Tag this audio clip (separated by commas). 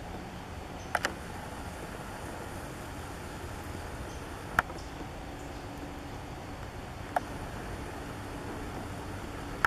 woodpecker pecking tree